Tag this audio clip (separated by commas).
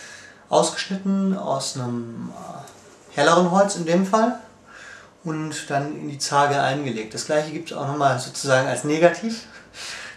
Speech